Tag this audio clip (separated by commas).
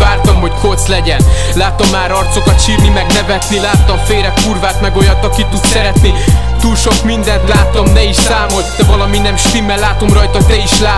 Music